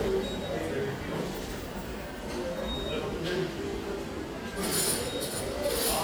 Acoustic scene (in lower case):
crowded indoor space